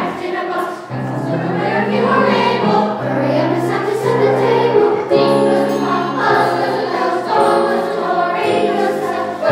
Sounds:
music, jingle bell

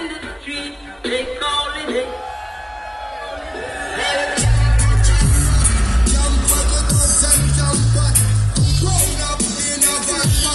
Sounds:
electronic music, dubstep, music

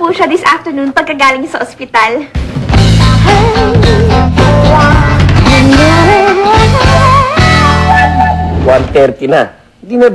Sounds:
speech, music

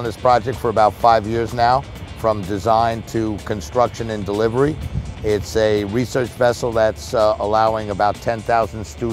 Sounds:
music, speech

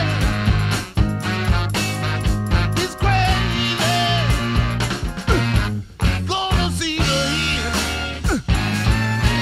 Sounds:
progressive rock

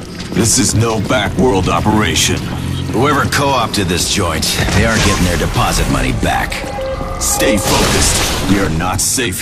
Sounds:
speech, burst

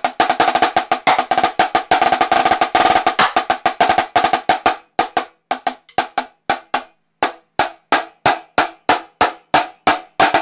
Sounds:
playing snare drum

